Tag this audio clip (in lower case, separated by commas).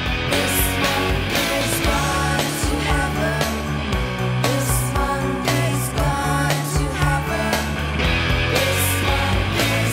music